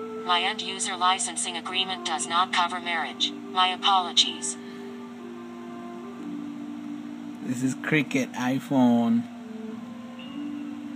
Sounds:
Speech, Music

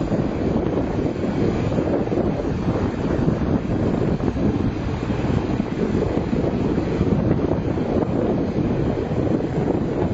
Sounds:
outside, rural or natural

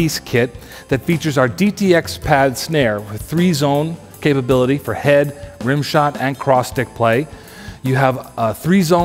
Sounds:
Snare drum, Drum, Drum kit, Bass drum, Percussion

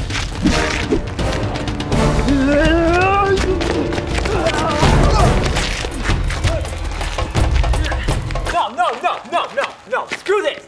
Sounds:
Speech, Music

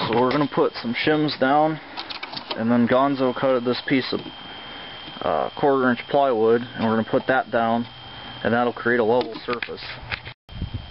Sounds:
Speech

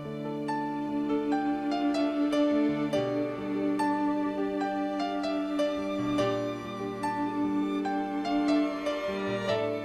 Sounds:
Music, Sad music

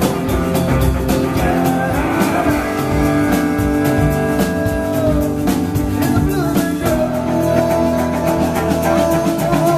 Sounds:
Musical instrument, Singing, Music, Guitar

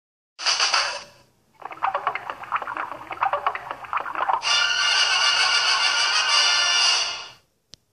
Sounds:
Music, Television

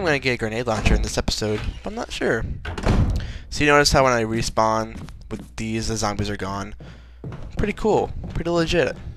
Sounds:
Speech

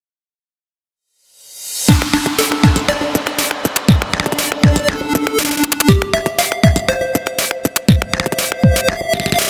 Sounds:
Music, Electronic dance music

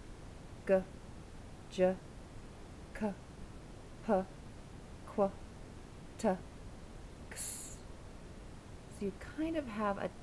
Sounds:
Speech

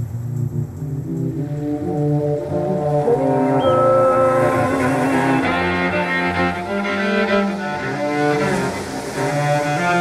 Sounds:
Music

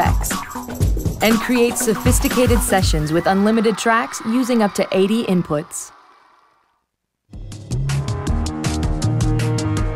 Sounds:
Speech, Music

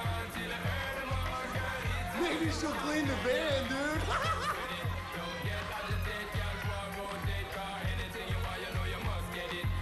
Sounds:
Speech, Music

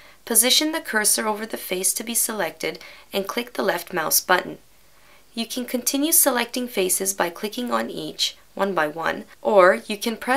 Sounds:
Speech

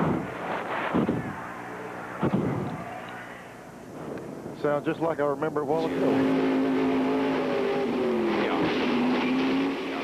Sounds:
Speech

